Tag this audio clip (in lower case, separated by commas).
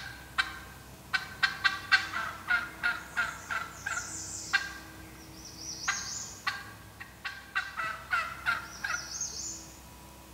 gobble, fowl, turkey, turkey gobbling